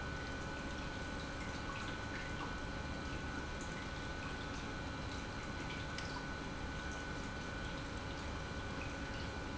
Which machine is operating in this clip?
pump